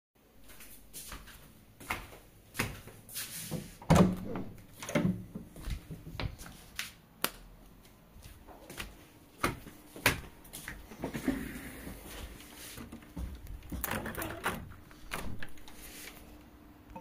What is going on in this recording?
Entering my room, switching the light on, and walking to the window, while moving a chair away to open the window